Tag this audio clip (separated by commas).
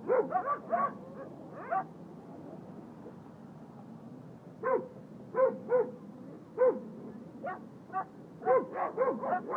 Animal, Domestic animals, Dog, dog bow-wow, Bow-wow